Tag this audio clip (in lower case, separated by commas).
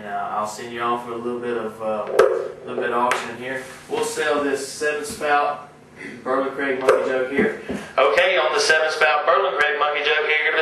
speech